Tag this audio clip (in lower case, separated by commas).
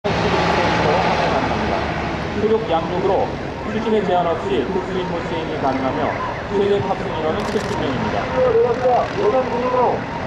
speech, vehicle